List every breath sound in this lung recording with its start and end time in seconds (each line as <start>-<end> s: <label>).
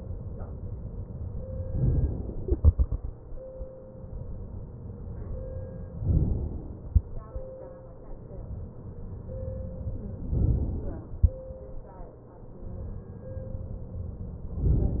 1.79-2.45 s: inhalation
2.45-3.71 s: exhalation
6.10-6.88 s: inhalation
10.36-11.14 s: inhalation